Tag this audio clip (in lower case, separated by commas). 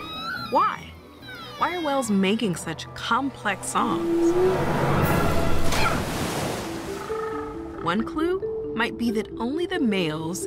whale calling